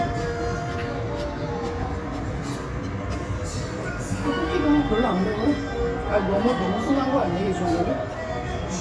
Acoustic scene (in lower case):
restaurant